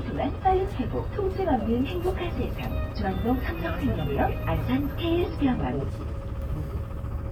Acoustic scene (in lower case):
bus